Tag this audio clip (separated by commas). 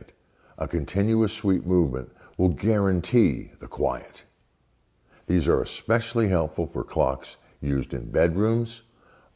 Speech